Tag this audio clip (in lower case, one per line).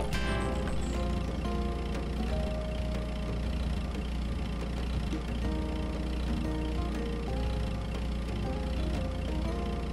music
car